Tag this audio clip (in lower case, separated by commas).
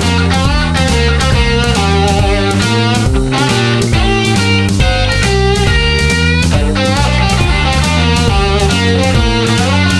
guitar, musical instrument, acoustic guitar, strum, music, plucked string instrument, playing electric guitar, electric guitar